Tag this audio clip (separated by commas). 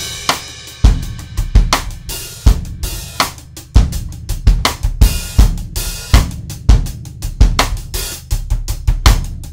Music, Drum, Musical instrument, Drum kit